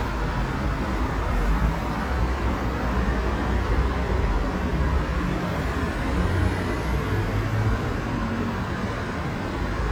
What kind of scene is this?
street